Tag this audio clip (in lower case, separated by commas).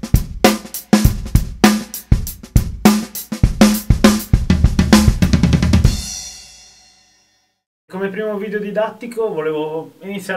speech, music